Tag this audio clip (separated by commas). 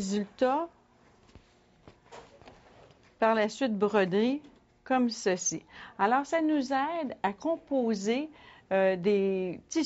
Speech